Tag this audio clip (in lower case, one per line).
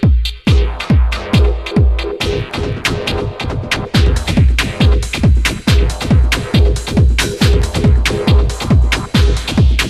electronic music
techno
music